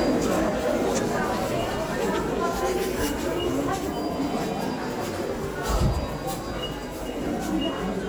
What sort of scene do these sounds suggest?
crowded indoor space